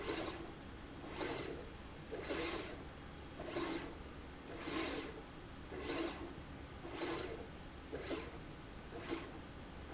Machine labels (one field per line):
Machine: slide rail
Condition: abnormal